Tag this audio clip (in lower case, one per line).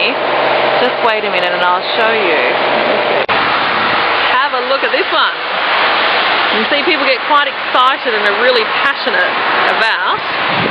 speech